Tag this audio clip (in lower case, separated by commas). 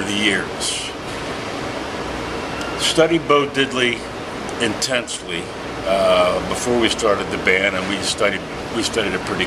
speech